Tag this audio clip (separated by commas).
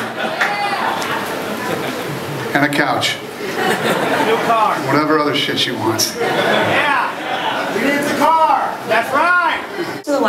Speech